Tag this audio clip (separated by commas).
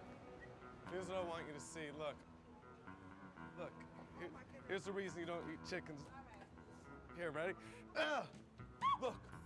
Speech